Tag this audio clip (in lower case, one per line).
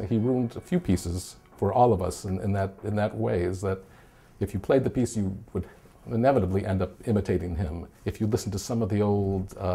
speech